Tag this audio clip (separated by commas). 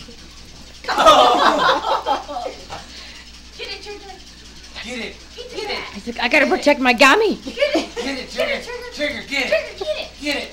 Speech